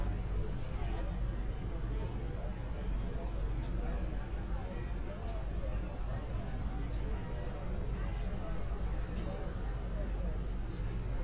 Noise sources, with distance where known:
person or small group talking

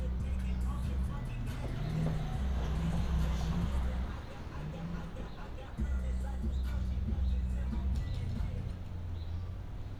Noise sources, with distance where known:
medium-sounding engine; music from an unclear source

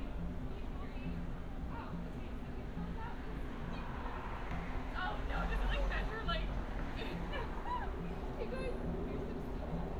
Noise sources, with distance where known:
person or small group talking

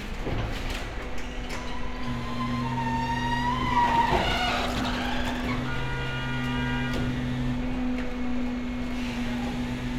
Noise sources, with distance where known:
large-sounding engine, near; car horn

